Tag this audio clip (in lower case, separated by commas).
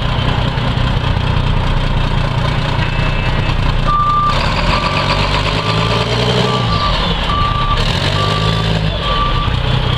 reversing beeps, truck, vehicle